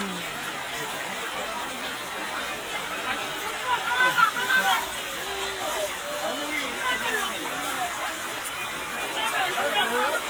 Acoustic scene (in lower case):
park